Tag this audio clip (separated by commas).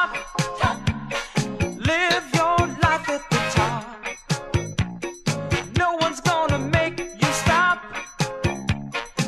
Music, Disco